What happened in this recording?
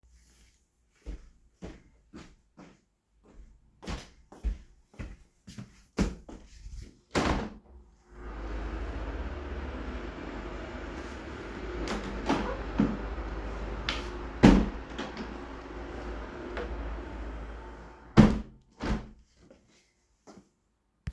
The device was placed in the room while I walked toward the window. I opened and closed the window and then walked away again. Wind and faint sounds from outside the window are audible in the background.